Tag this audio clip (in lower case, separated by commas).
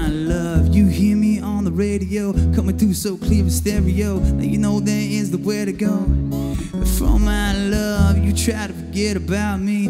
music